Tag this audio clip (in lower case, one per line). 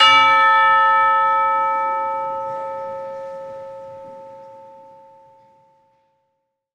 percussion
music
church bell
musical instrument
bell